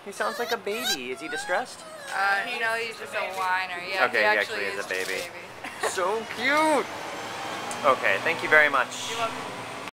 An animal whines, and an adult female and two adult males speak